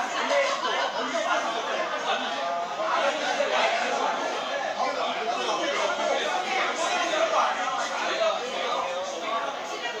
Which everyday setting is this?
restaurant